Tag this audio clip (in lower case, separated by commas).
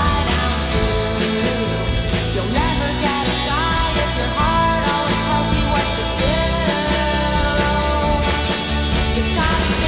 blues, music